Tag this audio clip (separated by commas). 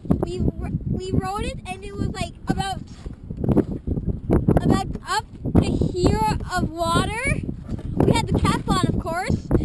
Speech